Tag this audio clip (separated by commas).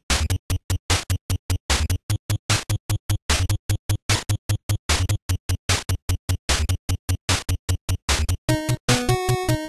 Theme music, Music